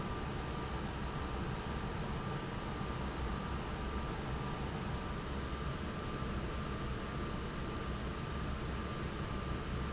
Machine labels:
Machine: fan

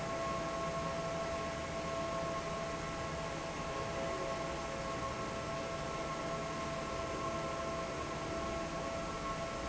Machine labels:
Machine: fan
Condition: normal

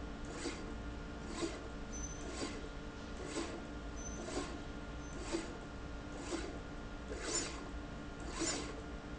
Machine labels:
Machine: slide rail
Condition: abnormal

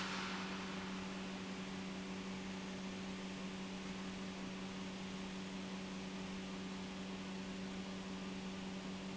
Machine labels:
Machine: pump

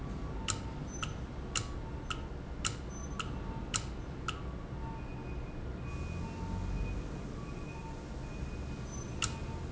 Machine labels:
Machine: valve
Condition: normal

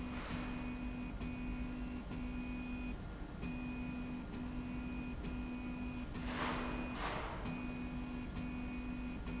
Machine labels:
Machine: slide rail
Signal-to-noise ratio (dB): 0 dB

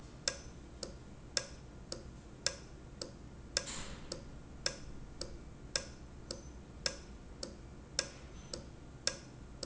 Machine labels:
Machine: valve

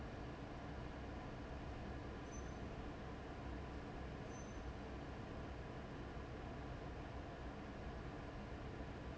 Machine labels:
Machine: fan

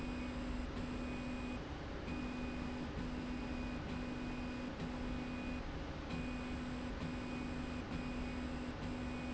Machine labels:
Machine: slide rail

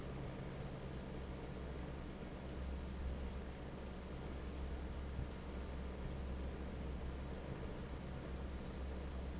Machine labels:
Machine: fan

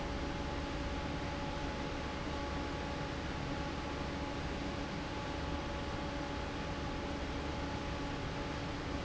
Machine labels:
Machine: fan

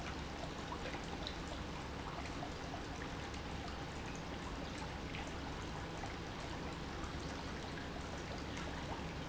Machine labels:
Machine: pump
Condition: normal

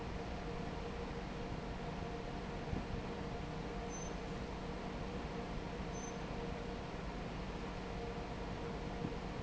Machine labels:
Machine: fan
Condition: normal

